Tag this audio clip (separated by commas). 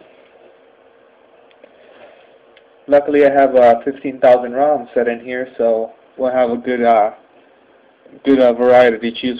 Speech